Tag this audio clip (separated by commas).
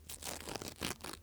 Tearing